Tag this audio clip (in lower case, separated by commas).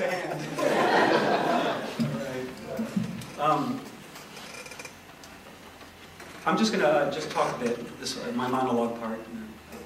speech, monologue, male speech